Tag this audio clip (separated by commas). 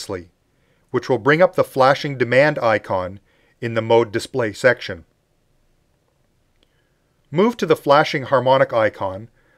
Speech